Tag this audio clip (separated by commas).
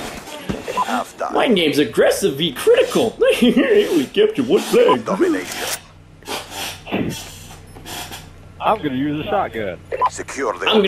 Speech, inside a small room